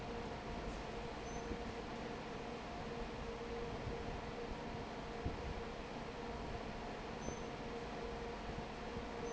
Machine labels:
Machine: fan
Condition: normal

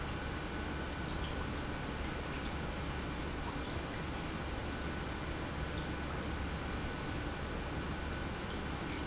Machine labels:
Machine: pump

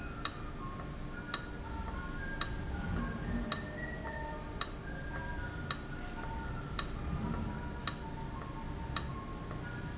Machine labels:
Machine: valve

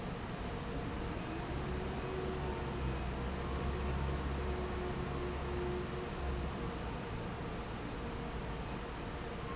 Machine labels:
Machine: fan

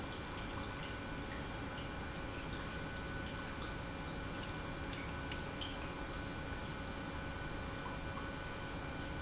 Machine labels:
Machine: pump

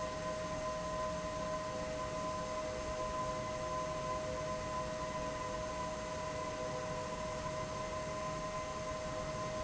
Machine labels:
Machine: fan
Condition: abnormal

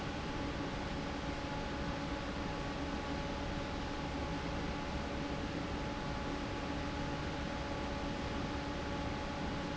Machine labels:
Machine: fan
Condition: normal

